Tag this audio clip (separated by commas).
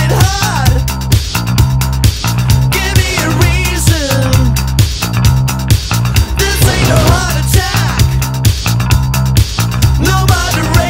Music